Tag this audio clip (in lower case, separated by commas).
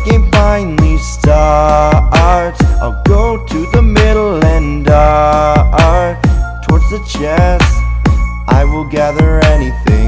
music